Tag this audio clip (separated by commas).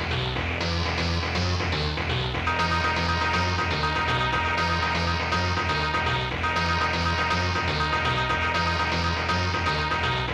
Music